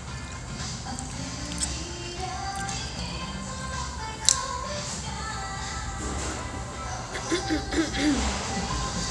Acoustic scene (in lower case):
restaurant